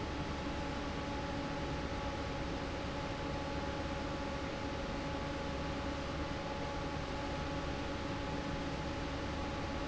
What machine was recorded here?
fan